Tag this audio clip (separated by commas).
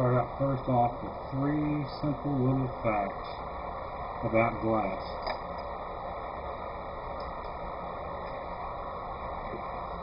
Speech